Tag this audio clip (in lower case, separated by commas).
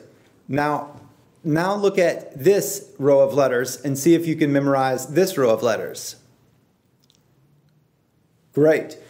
speech